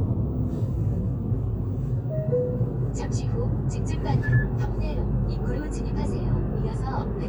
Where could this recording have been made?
in a car